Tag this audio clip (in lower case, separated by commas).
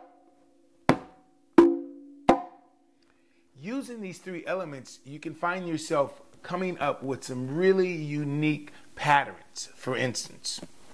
music, wood block, percussion, speech